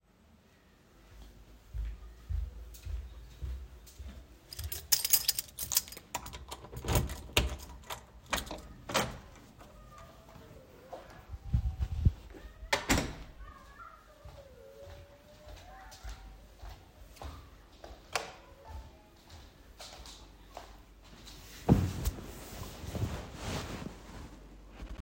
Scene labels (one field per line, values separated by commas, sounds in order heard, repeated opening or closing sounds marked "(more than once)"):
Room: hallway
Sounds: footsteps, keys, door (more than once), light switch